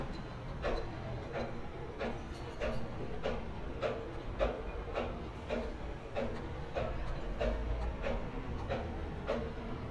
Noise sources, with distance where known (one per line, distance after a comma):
unidentified impact machinery, near